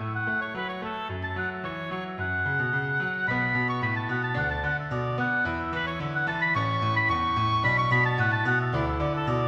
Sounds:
Music

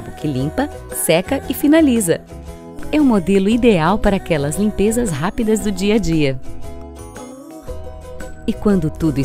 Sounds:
Music, Speech

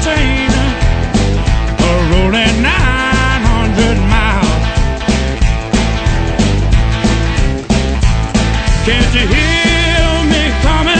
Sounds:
Musical instrument, Plucked string instrument, Singing, Guitar

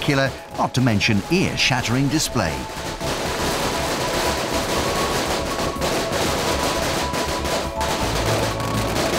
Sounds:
Speech, Music

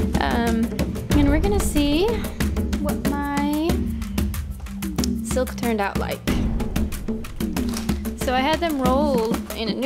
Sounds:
Speech, Music

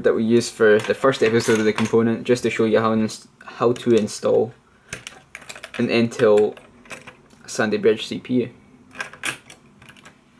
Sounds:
inside a small room, Speech

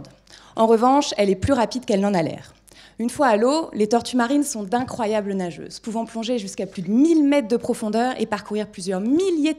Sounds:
Speech

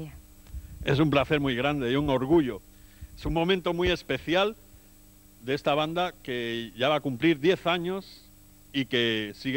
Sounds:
Speech

